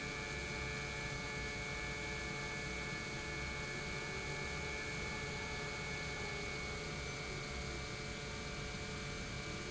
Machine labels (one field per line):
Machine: pump